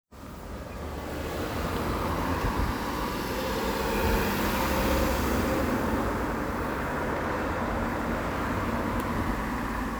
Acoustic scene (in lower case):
street